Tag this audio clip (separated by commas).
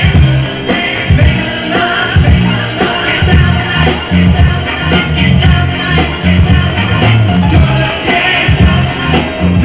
Disco, Music